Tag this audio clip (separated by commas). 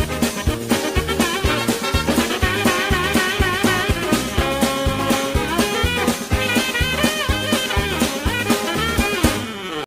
Music